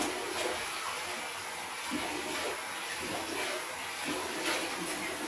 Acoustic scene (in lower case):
restroom